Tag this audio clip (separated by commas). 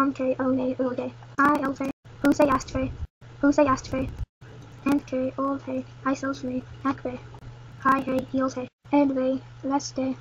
Speech